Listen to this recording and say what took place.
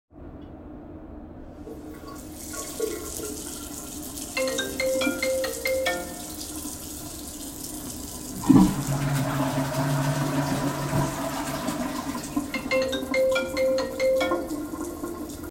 I turned on the water, then flushed the toilet. While i was doing it, my phone alarm went off. Then I turned off the water.